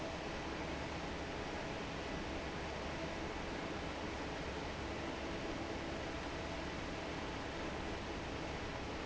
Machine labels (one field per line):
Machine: fan